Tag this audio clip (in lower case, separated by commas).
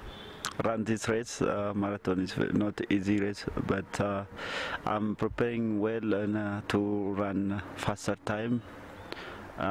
speech